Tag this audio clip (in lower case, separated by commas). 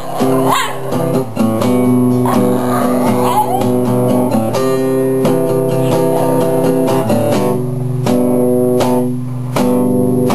dog, music, bow-wow, pets, yip, whimper (dog), animal